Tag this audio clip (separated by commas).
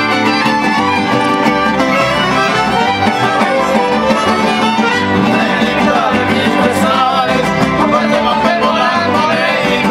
Music